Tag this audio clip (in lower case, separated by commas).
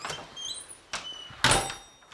slam, door, home sounds